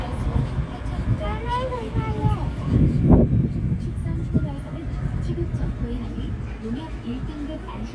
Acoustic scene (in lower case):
residential area